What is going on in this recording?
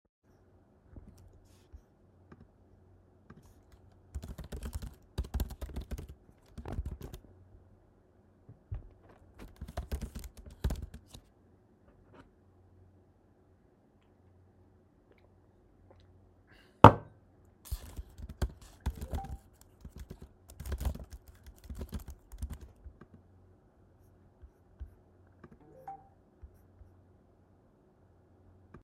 I'm working on my laptop, drink some water and receive a notification on my phone.